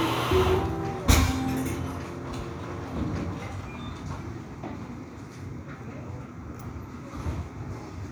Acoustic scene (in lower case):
cafe